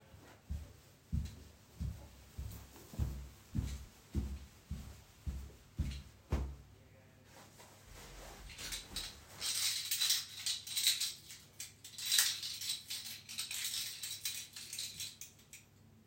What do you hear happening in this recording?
walk through the hallway and pull out my keychain